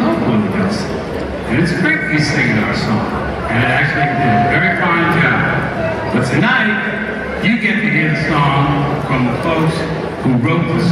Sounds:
Speech

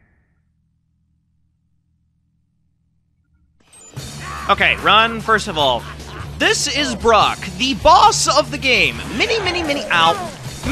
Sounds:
Silence, Speech, Music

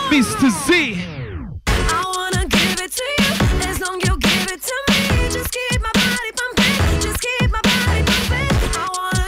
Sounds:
Speech, Music

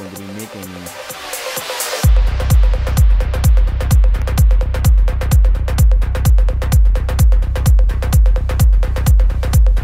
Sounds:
Speech, Music

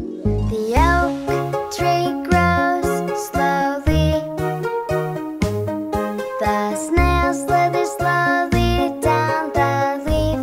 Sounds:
Music, Music for children

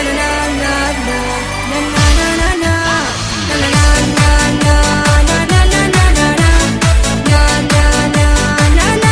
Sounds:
Music, Techno, Electronic music

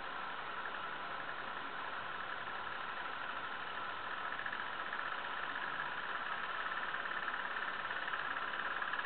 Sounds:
Engine

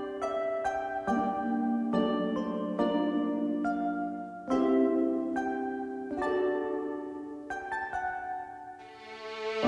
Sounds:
Music

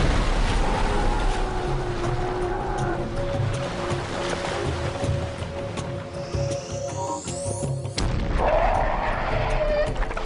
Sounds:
Music, Animal

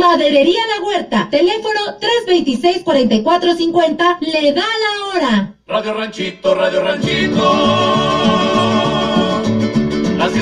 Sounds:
Radio, Music, Speech

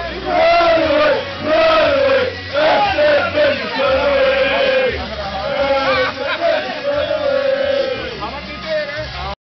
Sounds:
Speech, Male singing, Music, Choir

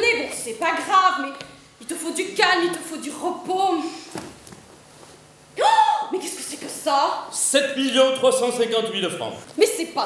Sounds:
Speech

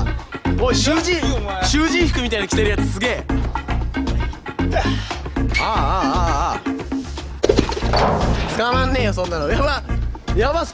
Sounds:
bouncing on trampoline

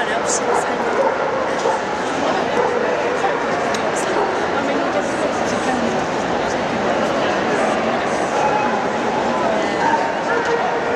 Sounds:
Bow-wow, Dog, pets, Animal, Speech

